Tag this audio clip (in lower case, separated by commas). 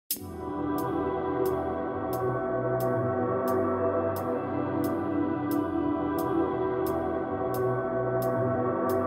music, electronic music